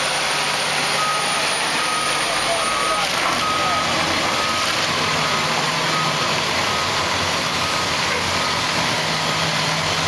Truck engine with beeping in the distance as people are talking